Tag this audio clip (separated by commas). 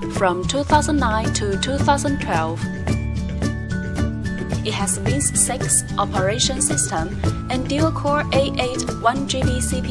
Speech, Music